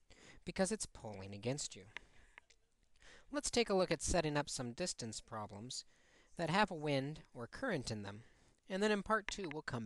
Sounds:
speech

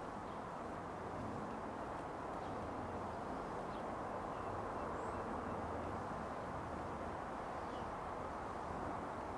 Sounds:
outside, rural or natural, bird

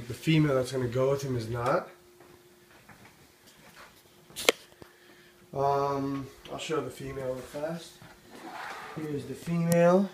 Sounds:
inside a small room, speech

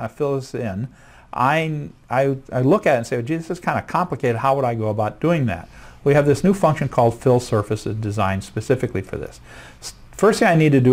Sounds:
speech

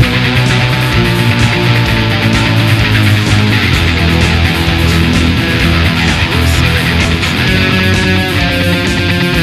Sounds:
plucked string instrument, electric guitar, musical instrument, guitar, music

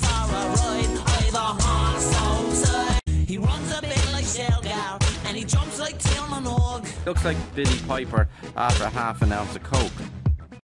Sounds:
speech, music

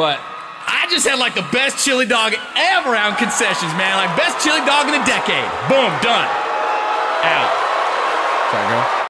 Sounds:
man speaking, speech

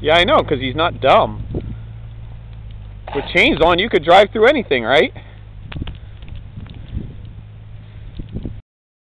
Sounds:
speech

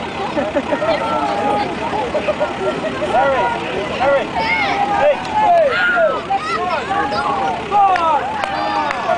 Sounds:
vehicle, truck, speech

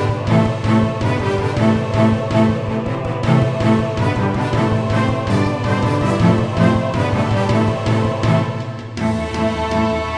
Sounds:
soundtrack music, music

